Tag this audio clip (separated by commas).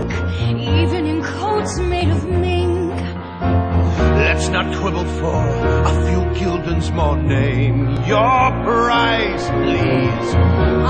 Music